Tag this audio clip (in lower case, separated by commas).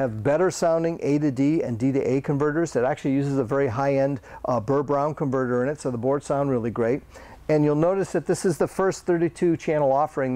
speech